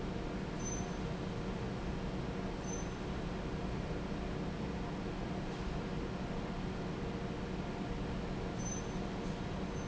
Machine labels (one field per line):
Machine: fan